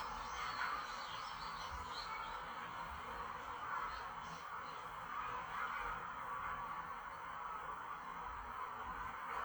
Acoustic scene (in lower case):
park